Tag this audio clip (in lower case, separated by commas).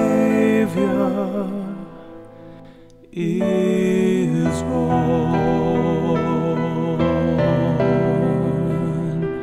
music, tender music, christian music